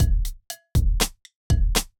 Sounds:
percussion
drum kit
music
musical instrument

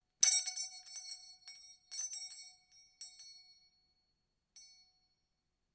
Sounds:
bell

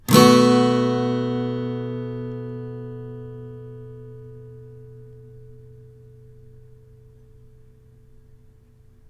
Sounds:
acoustic guitar
guitar
musical instrument
music
plucked string instrument

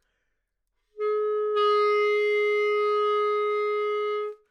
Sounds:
music
musical instrument
woodwind instrument

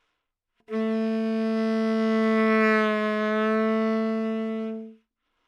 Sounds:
wind instrument
music
musical instrument

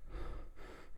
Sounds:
breathing
respiratory sounds

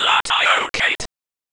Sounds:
whispering
human voice

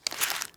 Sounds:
crumpling

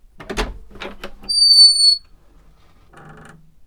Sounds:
home sounds
door

